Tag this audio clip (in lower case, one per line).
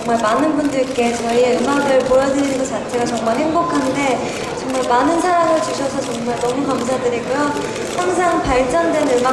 speech